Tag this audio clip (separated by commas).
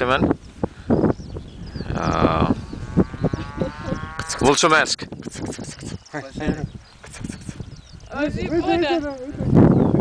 Speech, Sheep